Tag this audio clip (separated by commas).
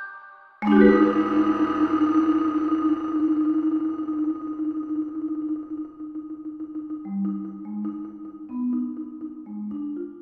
Piano, Musical instrument, Music, xylophone, playing piano